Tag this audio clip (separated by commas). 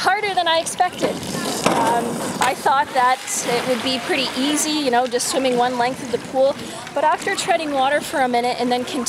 Speech, outside, urban or man-made